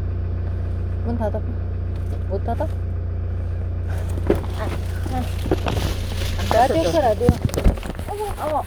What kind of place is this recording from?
car